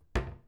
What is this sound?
wooden cupboard closing